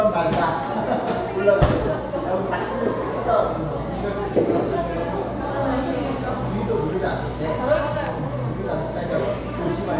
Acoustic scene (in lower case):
cafe